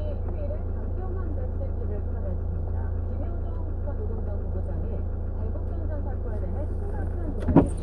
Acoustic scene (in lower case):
car